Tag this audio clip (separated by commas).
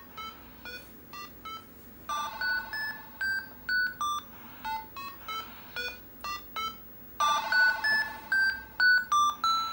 Television, Music